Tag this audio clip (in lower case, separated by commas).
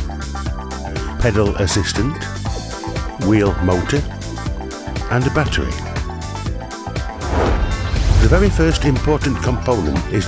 speech, music